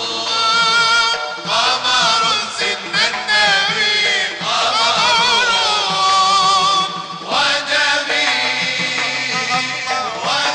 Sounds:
Music

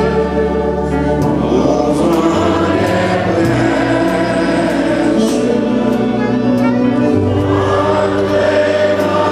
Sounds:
Music

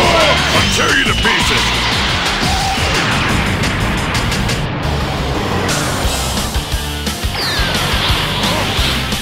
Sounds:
Music, Speech

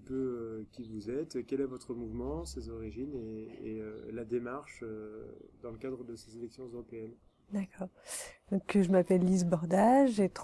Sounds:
Speech

